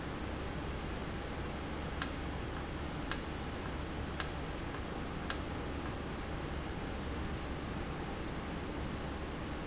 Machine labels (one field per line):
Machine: valve